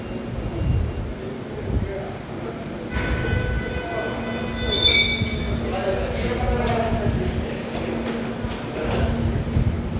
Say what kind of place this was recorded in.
subway station